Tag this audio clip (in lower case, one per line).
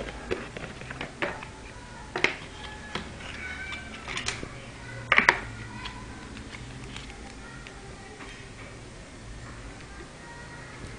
speech